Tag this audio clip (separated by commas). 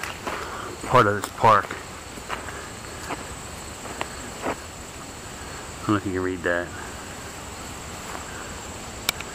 outside, rural or natural, Speech